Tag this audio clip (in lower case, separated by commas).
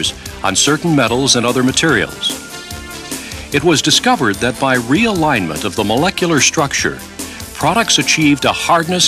music, speech